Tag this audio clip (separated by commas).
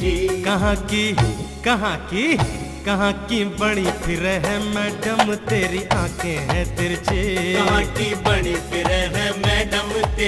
Music, Music of Bollywood